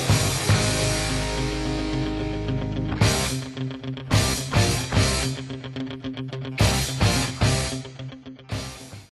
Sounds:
Music

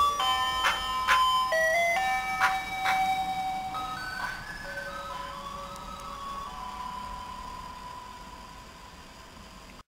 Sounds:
ice cream van, Music

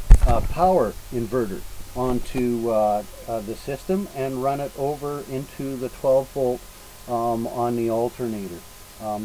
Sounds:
Speech

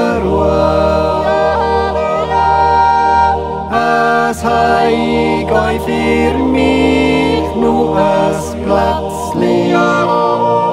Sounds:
yodelling

